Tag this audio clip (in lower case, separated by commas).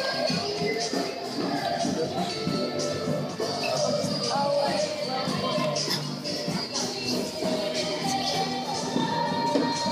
speech, music